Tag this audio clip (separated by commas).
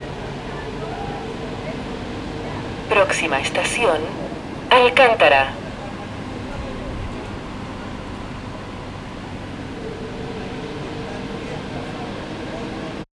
metro, Vehicle, Rail transport